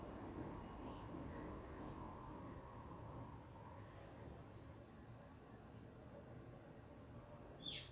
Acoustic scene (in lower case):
park